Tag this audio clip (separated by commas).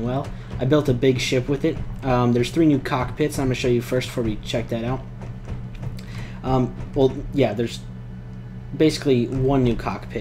Speech, Music